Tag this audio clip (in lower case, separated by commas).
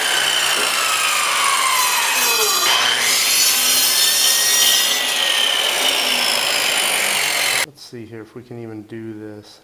sawing, rub, wood